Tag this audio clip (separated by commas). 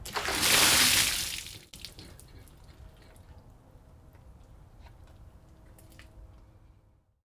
Splash, Liquid